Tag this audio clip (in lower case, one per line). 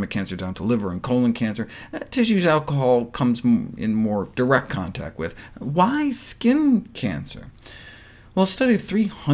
speech